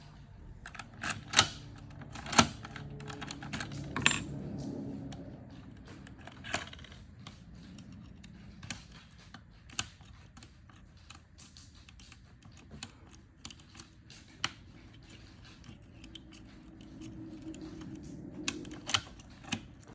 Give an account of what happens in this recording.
Keys shaking while opening door.